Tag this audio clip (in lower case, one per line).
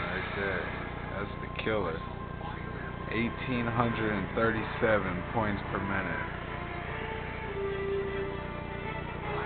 speech
music